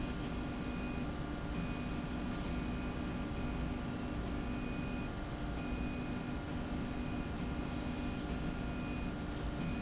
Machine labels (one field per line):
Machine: slide rail